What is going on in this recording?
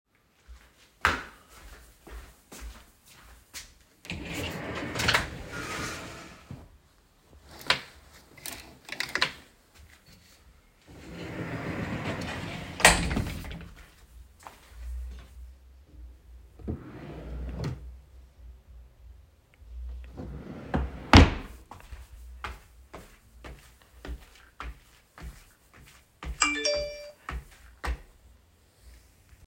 I walked to the wardrobe, opened the sliding door, moved the hangers, and closed it again. Then I opened a drawer and closed it. After that I walked away and during the scene an Instagram notification could be heard.